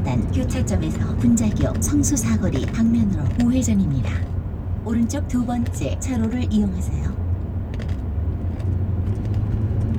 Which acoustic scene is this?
car